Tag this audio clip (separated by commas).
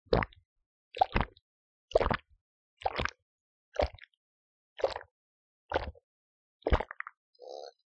Liquid